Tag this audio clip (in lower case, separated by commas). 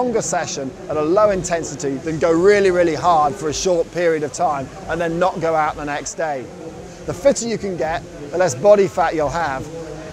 speech